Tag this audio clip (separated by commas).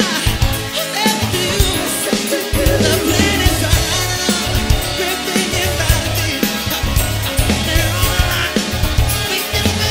Singing, Music